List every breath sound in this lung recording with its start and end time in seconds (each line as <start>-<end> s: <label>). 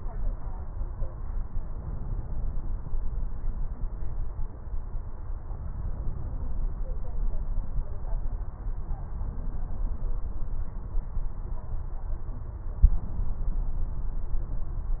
1.70-3.00 s: inhalation